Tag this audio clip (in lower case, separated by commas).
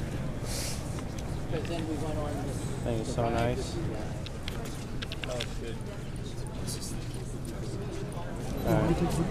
speech